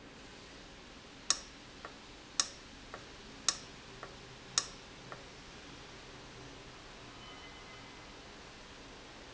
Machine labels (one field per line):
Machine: valve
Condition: abnormal